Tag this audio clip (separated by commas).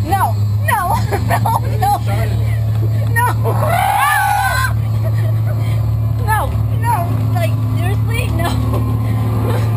Speech